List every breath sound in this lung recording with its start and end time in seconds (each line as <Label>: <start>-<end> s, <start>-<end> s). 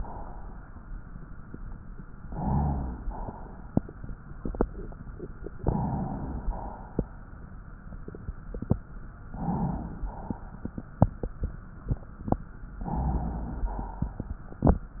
Inhalation: 2.23-3.10 s, 5.59-6.51 s, 9.26-10.07 s, 12.79-13.67 s
Exhalation: 3.09-3.86 s, 6.50-7.31 s, 10.06-10.87 s, 13.66-14.58 s